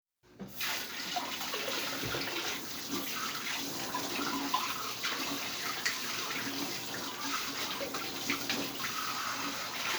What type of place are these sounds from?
kitchen